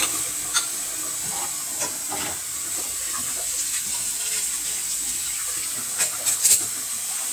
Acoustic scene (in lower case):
kitchen